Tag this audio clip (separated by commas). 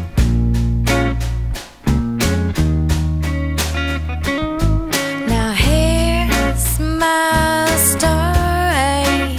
Music